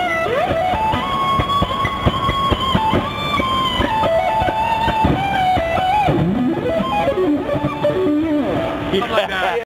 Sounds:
speech, music

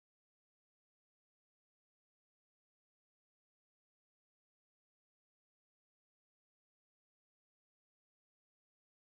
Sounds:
music

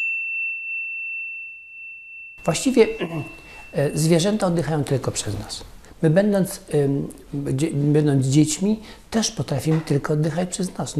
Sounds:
speech

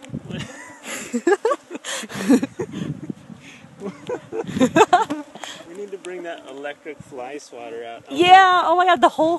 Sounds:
mosquito buzzing

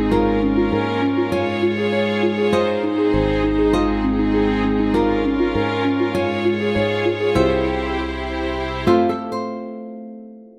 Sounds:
music

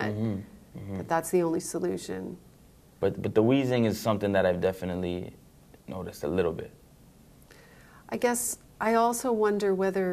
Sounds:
speech, conversation

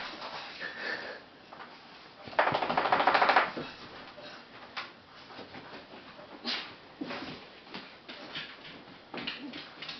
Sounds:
inside a small room

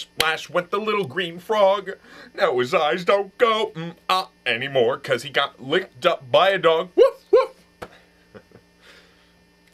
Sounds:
speech

